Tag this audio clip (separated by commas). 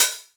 Hi-hat, Cymbal, Percussion, Musical instrument, Music